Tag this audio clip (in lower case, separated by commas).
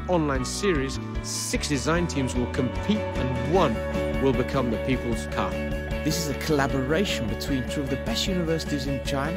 music, speech